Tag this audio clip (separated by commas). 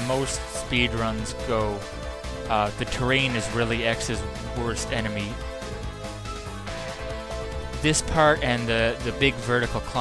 Music, Speech